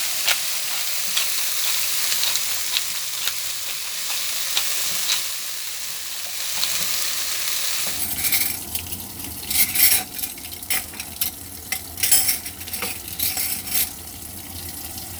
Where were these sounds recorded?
in a kitchen